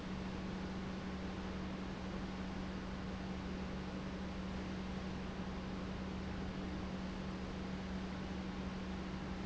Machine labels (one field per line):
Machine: pump